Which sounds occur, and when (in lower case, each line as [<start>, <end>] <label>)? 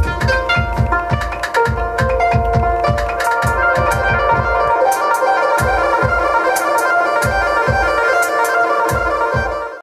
[0.00, 9.82] music